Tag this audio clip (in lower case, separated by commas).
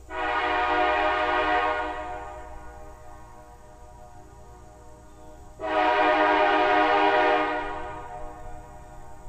car horn